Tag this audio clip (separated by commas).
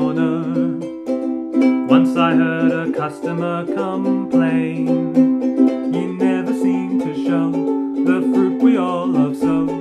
Ukulele, Music